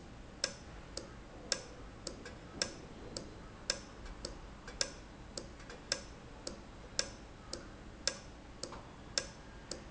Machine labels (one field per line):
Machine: valve